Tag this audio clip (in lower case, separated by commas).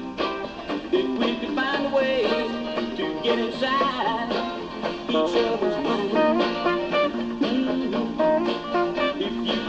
music